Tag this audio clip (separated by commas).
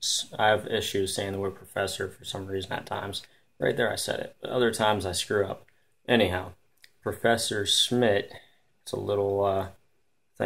Speech